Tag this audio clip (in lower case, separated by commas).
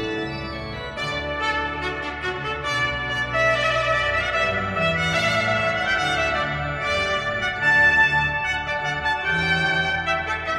music, clarinet